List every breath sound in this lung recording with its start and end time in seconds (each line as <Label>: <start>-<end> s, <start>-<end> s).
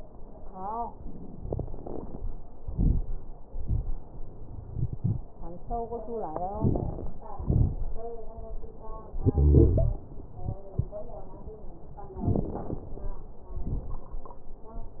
Inhalation: 6.61-7.12 s, 12.26-12.83 s
Exhalation: 7.36-7.87 s, 13.56-14.12 s
Wheeze: 9.25-10.01 s
Crackles: 6.61-7.12 s, 7.36-7.87 s, 12.26-12.83 s, 13.56-14.12 s